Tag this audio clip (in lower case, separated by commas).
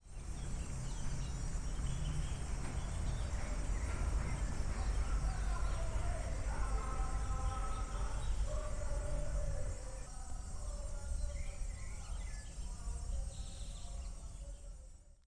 insect, wild animals, animal